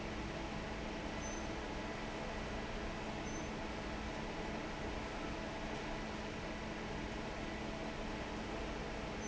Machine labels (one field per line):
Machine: fan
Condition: normal